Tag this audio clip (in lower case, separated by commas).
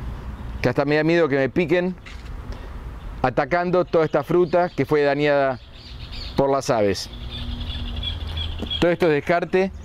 man speaking, bird, speech